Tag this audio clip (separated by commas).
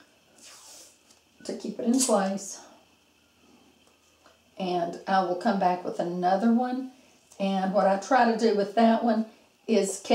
Speech, inside a small room